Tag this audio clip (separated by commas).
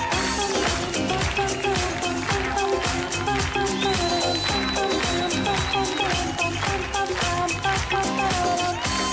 Female singing, Music